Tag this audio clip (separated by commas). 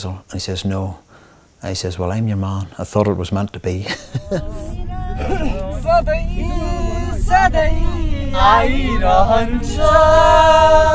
Speech, inside a small room, outside, rural or natural